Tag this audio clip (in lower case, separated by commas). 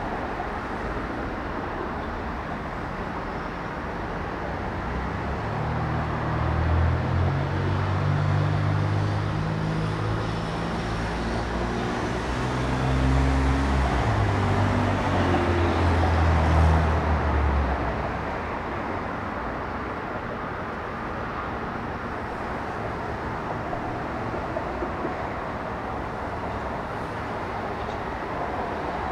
motor vehicle (road), vehicle, traffic noise